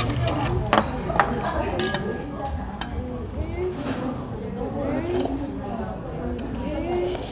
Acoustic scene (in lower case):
restaurant